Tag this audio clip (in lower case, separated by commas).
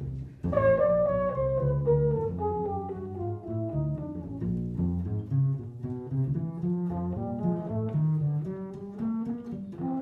playing double bass, double bass, music, brass instrument, musical instrument, saxophone